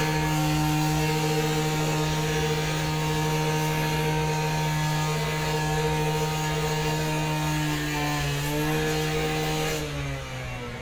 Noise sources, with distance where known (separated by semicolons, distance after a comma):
unidentified powered saw, near